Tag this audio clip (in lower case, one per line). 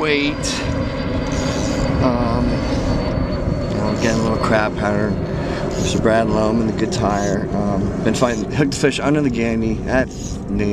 speech